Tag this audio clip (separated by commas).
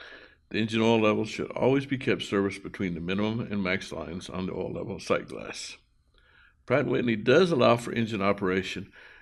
Speech